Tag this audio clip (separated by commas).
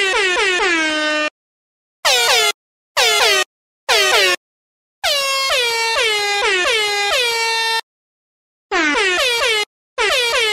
truck horn, Music